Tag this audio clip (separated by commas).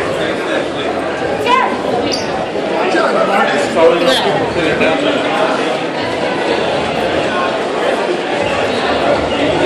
Speech